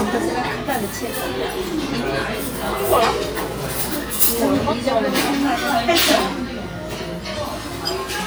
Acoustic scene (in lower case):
restaurant